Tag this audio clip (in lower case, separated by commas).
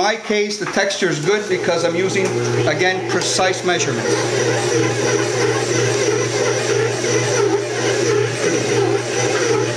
blender